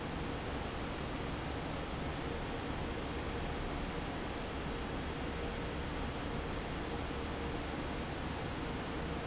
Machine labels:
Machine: fan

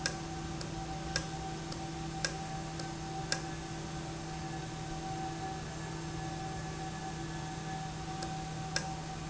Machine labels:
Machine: valve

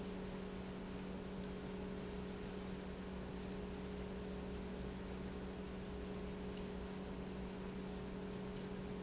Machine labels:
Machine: pump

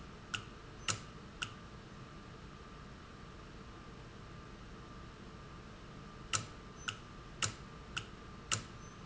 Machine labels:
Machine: valve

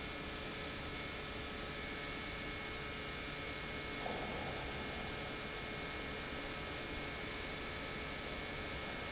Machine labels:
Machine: pump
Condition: normal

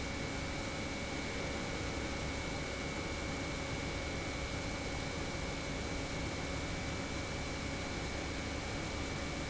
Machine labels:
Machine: pump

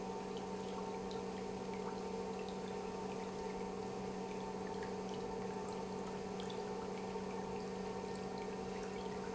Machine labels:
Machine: pump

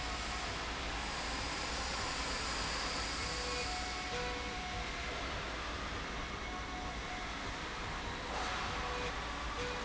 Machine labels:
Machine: slide rail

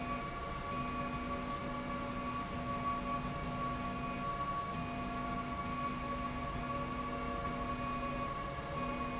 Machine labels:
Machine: slide rail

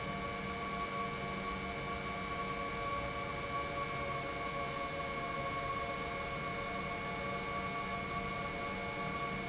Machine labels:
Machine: pump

